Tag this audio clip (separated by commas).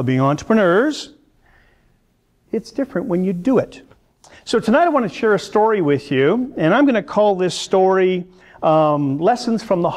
Male speech, Speech, monologue